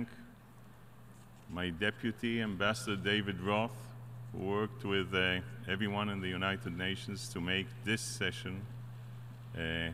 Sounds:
Speech, Narration, Male speech

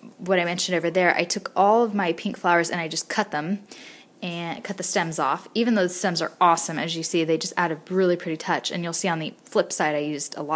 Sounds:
Speech

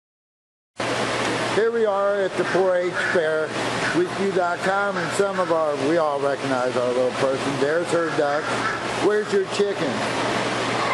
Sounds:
Bird, Speech

